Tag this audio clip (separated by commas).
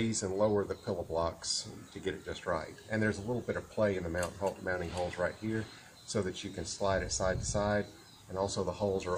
Speech